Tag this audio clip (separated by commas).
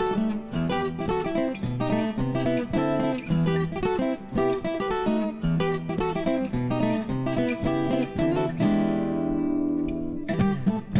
Plucked string instrument, Musical instrument, Jazz, Guitar, Music